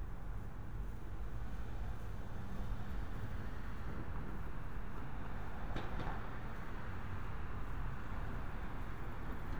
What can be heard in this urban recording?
medium-sounding engine